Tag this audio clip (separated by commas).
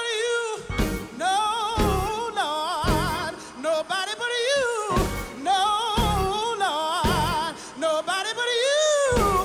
Music